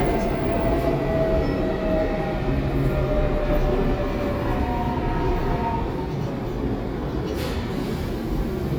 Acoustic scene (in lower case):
subway train